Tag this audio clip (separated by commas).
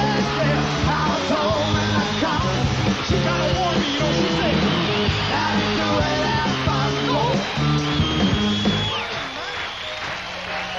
Music